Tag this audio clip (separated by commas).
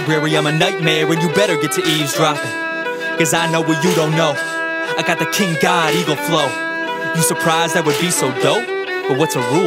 Music, Musical instrument, Violin